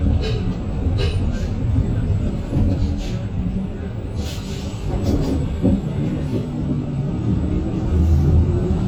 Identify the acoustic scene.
bus